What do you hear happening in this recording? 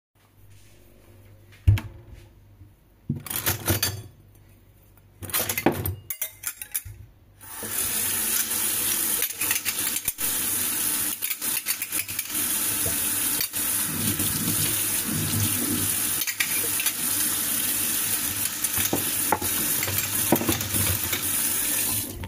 Grabing few forks and washing them under water